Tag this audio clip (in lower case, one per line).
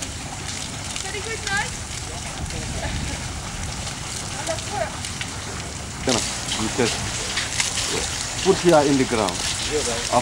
speech